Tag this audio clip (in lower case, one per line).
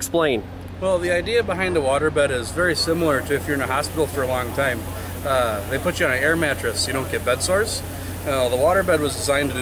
speech